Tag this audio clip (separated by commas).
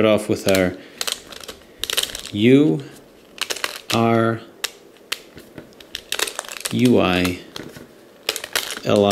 inside a small room, Speech